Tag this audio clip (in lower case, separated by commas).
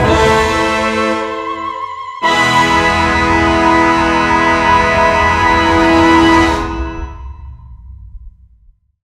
music